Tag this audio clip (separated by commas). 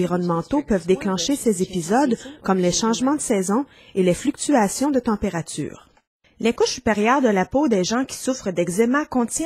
Speech